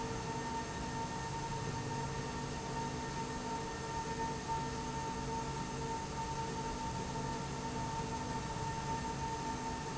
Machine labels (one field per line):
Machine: slide rail